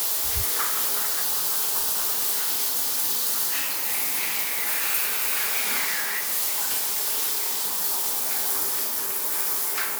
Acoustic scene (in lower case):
restroom